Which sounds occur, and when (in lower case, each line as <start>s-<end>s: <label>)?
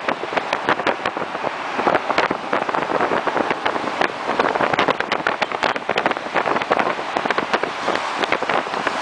0.0s-9.0s: motor vehicle (road)
0.0s-9.0s: wind noise (microphone)